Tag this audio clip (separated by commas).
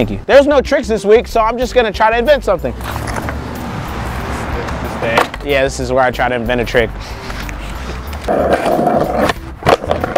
Skateboard